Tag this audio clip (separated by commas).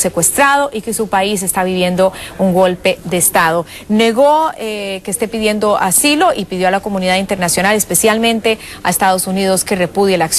Speech